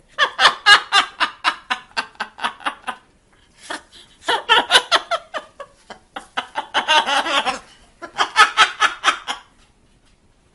A parrot is laughing like a woman